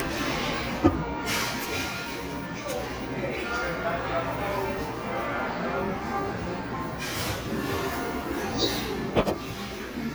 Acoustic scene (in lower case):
cafe